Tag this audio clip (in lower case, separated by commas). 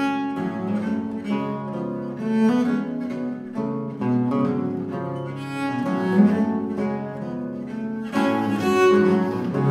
music, double bass, classical music, bowed string instrument, playing cello, musical instrument, string section, guitar, cello